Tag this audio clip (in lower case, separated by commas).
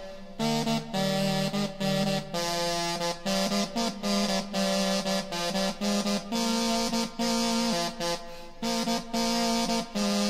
tender music, music